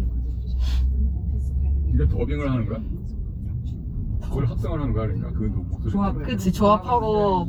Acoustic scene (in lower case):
car